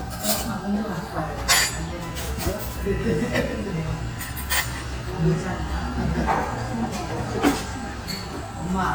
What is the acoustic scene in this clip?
restaurant